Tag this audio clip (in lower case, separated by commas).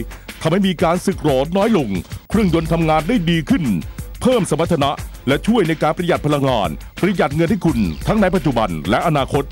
speech, music